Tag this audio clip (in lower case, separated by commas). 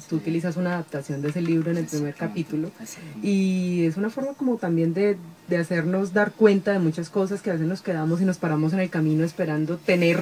speech